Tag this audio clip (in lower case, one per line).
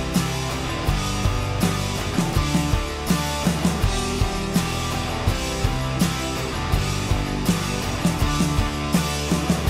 music